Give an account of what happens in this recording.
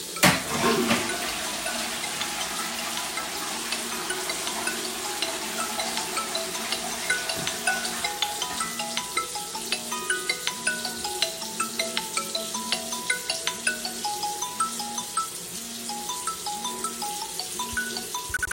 I flashed the toilet ,water was running and the mobile was ringing at same time.